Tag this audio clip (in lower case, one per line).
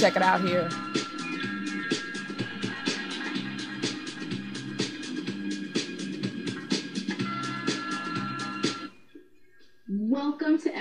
music
speech